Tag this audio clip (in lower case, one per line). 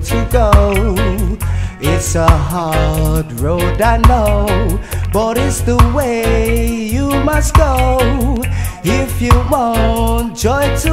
music